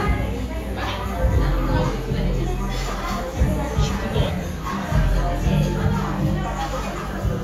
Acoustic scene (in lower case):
cafe